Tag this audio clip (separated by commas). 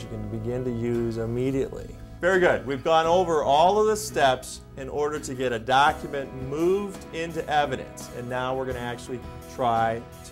Speech, Music